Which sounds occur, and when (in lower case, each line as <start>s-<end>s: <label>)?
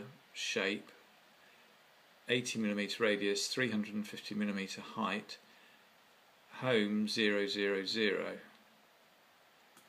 0.0s-9.8s: mechanisms
0.3s-0.9s: male speech
1.3s-1.7s: breathing
2.2s-5.3s: male speech
5.4s-5.9s: breathing
6.5s-8.4s: male speech
8.5s-8.6s: tick
9.7s-9.8s: clicking